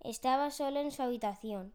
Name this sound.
speech